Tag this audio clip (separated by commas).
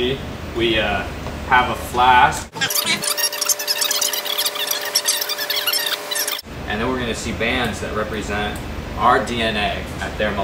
Speech